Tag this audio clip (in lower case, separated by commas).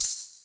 rattle (instrument), percussion, musical instrument, music